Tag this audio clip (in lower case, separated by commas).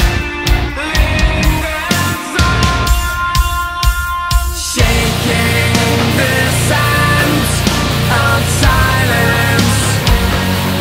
heavy metal, rock and roll, music